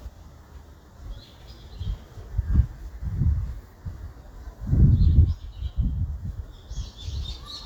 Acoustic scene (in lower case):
park